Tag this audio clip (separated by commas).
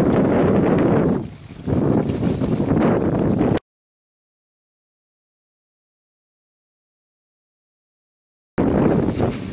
Silence